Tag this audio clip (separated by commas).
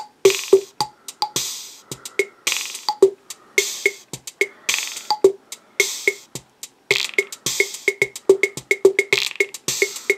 Music, Drum machine